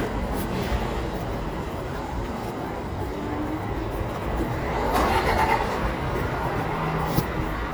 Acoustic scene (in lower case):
residential area